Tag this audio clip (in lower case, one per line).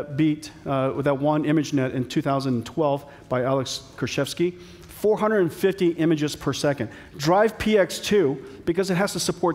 speech